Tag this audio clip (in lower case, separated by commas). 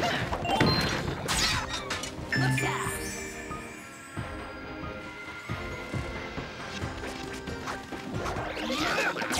music, speech